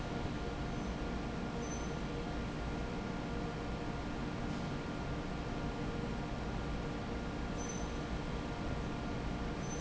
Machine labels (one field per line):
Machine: fan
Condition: normal